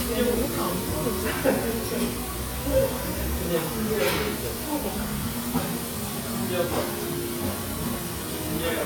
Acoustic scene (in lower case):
restaurant